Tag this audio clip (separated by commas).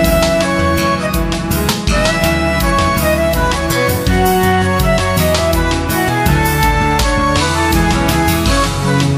Music